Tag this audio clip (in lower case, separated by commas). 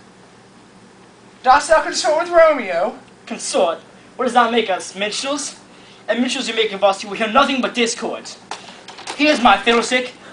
speech